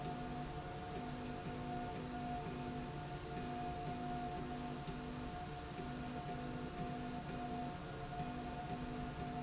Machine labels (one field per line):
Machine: slide rail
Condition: normal